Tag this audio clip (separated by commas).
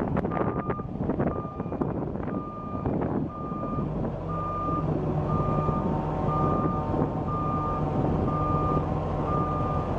Truck, Reversing beeps, Vehicle